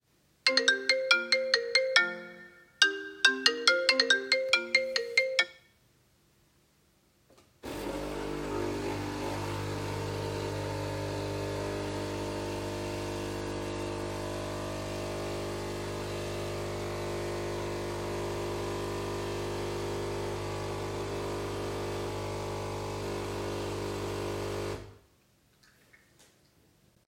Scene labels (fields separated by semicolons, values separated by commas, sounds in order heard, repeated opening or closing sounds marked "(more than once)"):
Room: kitchen; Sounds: phone ringing, coffee machine